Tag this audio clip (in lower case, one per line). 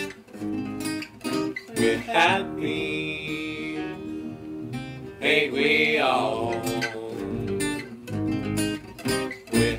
music